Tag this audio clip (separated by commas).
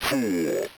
Human voice, Speech synthesizer, Speech